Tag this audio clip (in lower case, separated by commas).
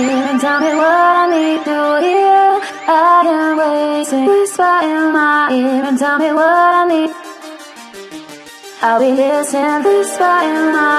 music, electronic music